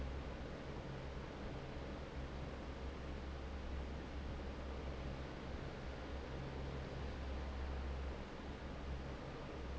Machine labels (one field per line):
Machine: fan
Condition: normal